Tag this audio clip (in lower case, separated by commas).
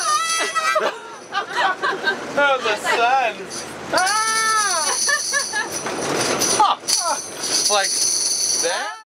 speech, music